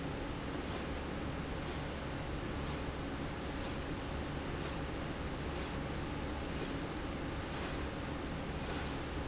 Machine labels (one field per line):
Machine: slide rail